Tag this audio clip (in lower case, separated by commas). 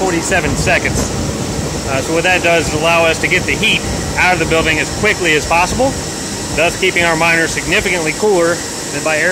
speech, inside a large room or hall